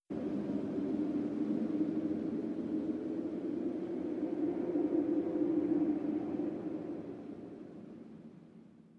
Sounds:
wind

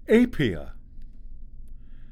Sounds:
man speaking, human voice, speech

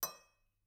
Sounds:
silverware, dishes, pots and pans, home sounds

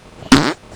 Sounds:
fart

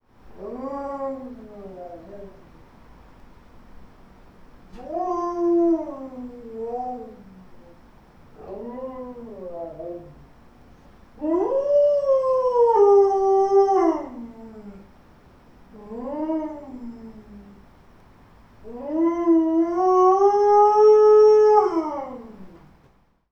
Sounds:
dog, animal, domestic animals

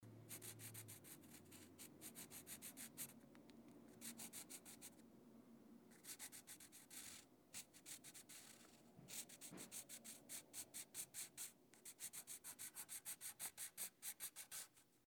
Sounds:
home sounds, writing

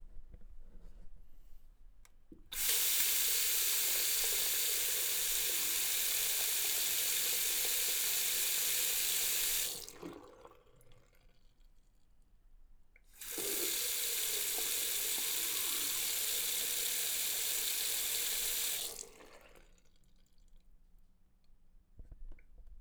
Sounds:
water tap, home sounds, sink (filling or washing)

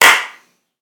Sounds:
hands, clapping

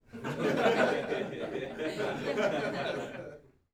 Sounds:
human voice, laughter, chortle

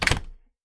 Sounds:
door, domestic sounds, slam

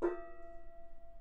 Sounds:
musical instrument, percussion, music, gong

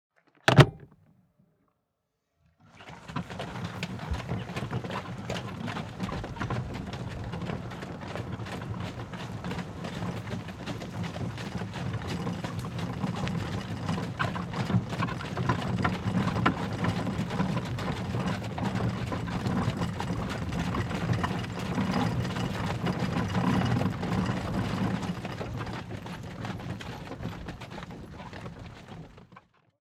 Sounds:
animal, livestock

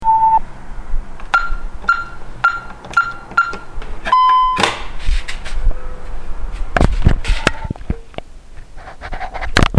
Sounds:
alarm

